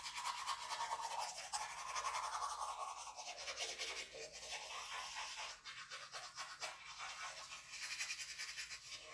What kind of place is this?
restroom